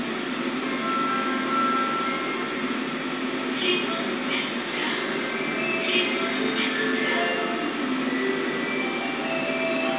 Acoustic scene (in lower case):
subway train